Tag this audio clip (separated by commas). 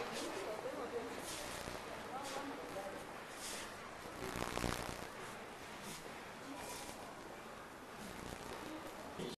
Speech